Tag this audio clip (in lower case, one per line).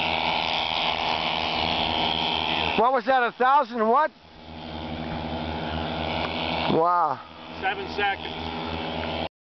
vehicle
speech
aircraft